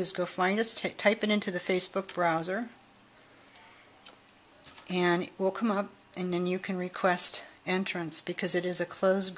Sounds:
Speech, inside a small room

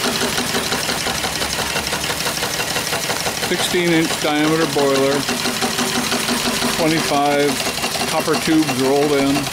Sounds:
Engine, Speech

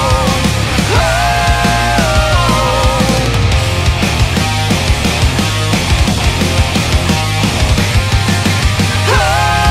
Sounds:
Exciting music, Music

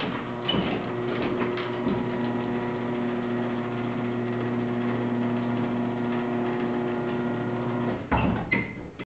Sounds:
Door

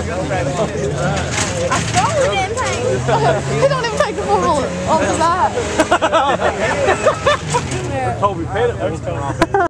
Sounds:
Speech

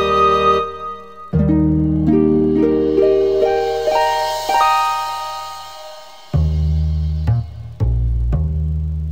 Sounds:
Music

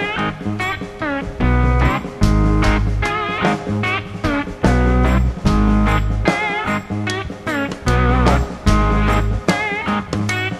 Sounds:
Plucked string instrument, Bass guitar, Music, Musical instrument, Guitar

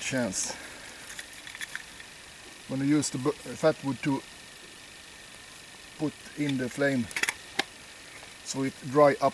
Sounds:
Speech

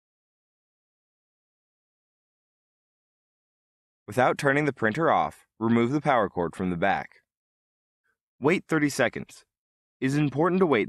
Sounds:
Speech

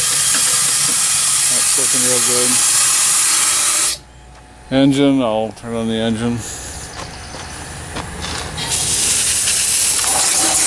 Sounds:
Hiss, Steam

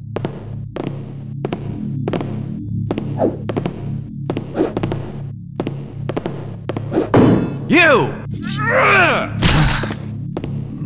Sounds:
Speech, Music, inside a large room or hall

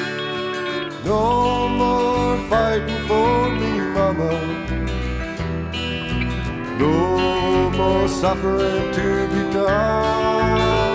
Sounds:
Music

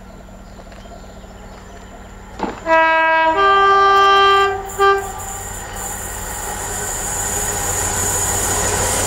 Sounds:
Vehicle, train wagon, Rail transport, Train

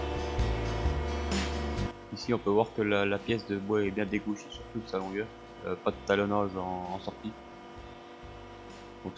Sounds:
planing timber

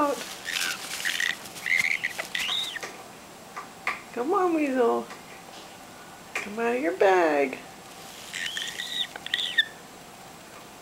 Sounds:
Speech, Bird

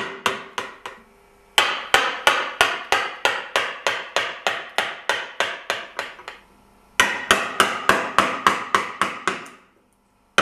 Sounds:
thwack

